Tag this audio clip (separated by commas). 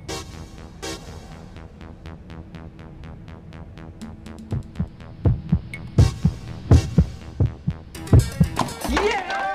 mouse pattering